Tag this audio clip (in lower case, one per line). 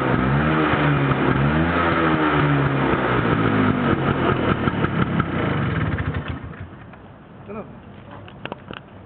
medium engine (mid frequency)
speech
vroom
engine
vehicle